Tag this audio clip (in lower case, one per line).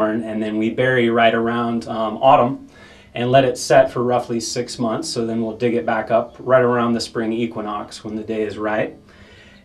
speech